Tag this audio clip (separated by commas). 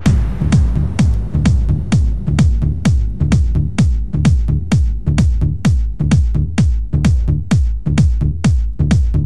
Music